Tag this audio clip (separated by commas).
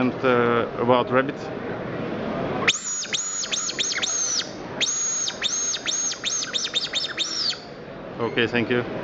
Speech